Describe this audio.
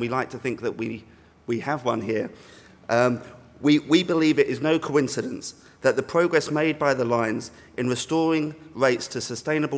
An adult male is speaking informatively